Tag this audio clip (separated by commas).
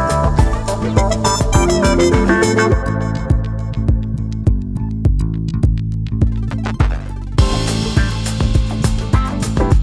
Music, Sampler